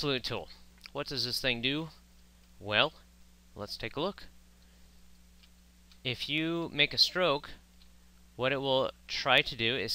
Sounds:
speech

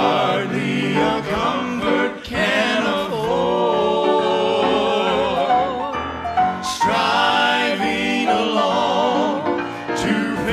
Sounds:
music

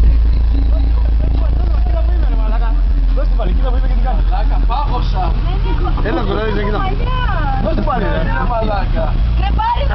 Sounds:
speech
vehicle

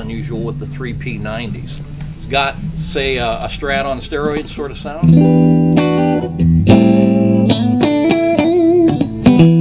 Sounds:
guitar
electric guitar
acoustic guitar
musical instrument
music
strum
speech
plucked string instrument

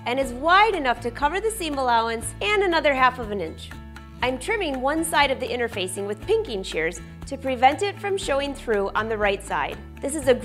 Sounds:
speech
music

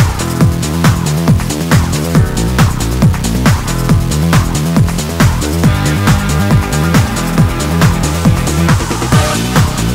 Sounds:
trance music
music

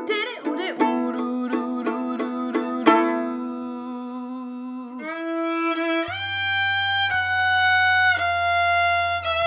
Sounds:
musical instrument
violin
music

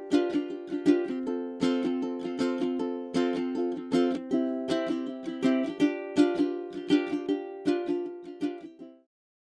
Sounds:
music

